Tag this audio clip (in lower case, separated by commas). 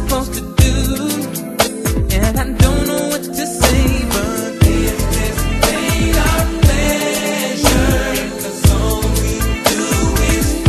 soul music